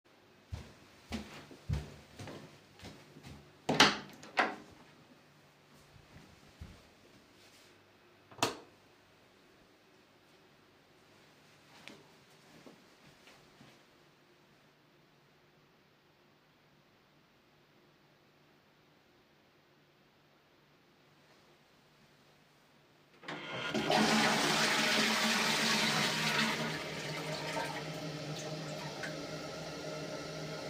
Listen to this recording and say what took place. A person opens the door and goes into the bathroom. In there he flicks the light switch and after some time he flushes the toilet.